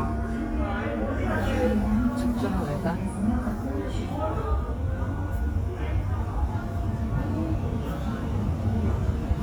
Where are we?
in a subway station